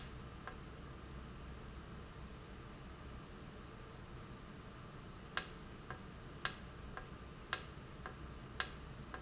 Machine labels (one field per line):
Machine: valve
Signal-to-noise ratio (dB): 6 dB